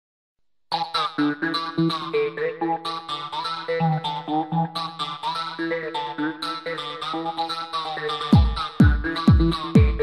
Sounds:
Electronic music, Music, Electronic dance music

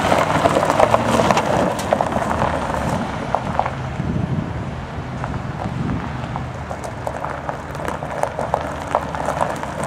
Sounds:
Vehicle, Truck

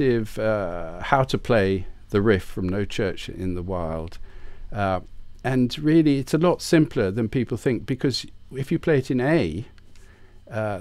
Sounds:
Speech

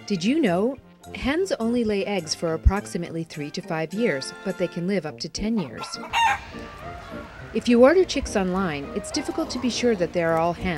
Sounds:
Cluck, Fowl, Chicken

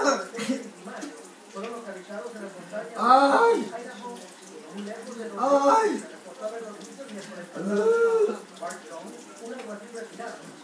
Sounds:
Water

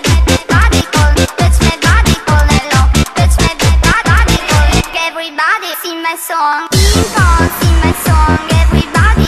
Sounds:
Music

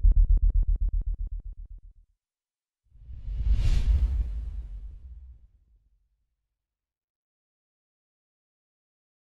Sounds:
Music

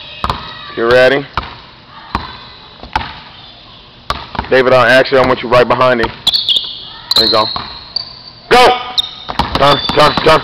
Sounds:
Speech

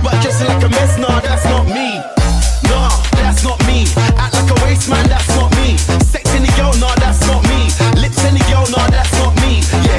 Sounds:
Music, Afrobeat

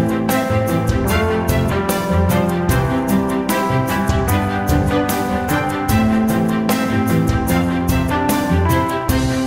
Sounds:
Music

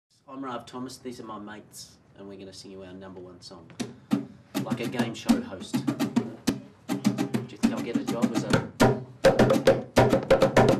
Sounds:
Music, Bass guitar

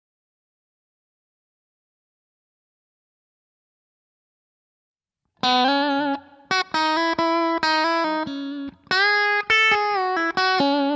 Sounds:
Musical instrument, Plucked string instrument, Guitar, Music

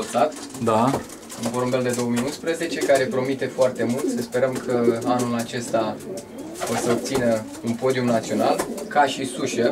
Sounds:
Bird, Pigeon, Speech

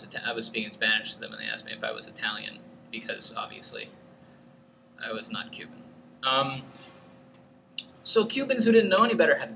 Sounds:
Speech

